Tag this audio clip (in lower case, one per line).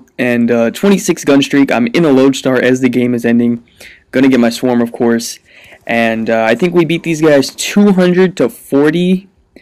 speech